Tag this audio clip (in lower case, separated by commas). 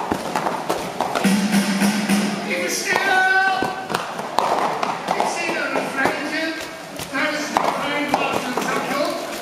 speech, music